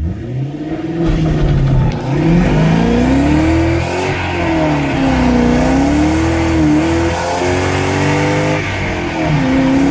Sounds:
revving, Medium engine (mid frequency), Car, Vehicle

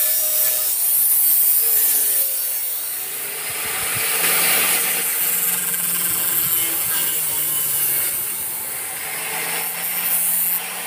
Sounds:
Tools, Power tool

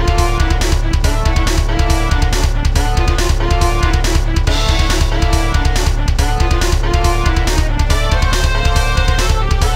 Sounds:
Music

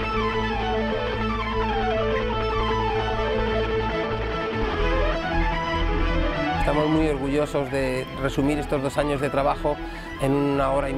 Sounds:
Music, Musical instrument, Speech, Guitar, Plucked string instrument

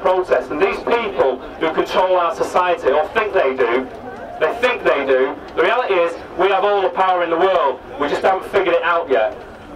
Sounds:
Speech, Male speech

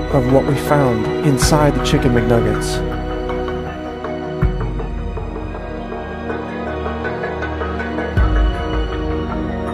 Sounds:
Speech, Music

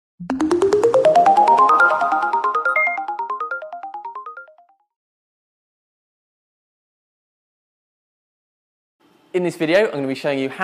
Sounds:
Speech, Ringtone

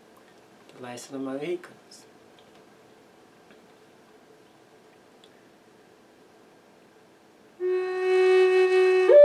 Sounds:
Musical instrument, Wind instrument, Speech, Music, Flute

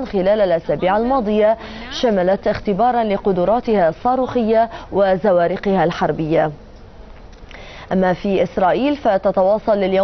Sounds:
Speech

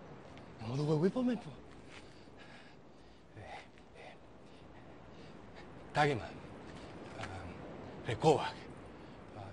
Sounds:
Speech, Male speech

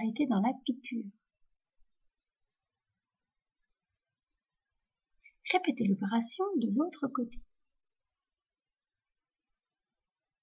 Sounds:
Speech

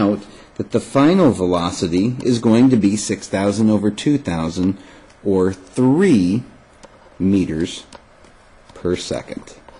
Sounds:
Speech

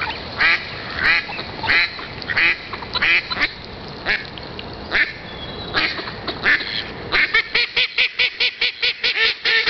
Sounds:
Duck, Bird

